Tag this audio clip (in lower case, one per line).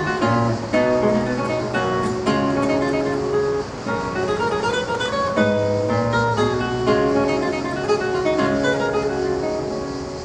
music